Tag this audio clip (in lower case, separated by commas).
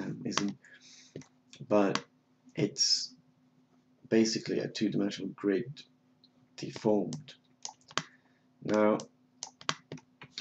speech